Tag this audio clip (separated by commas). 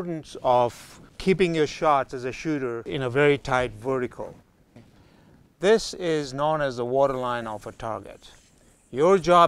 Speech